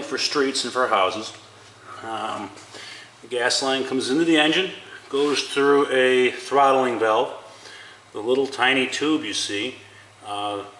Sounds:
speech

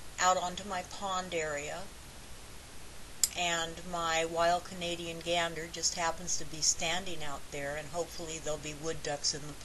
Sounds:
speech

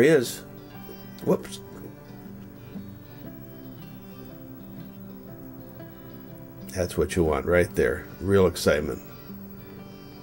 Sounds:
music
speech

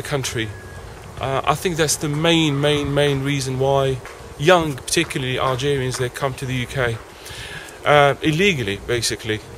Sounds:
speech
outside, urban or man-made

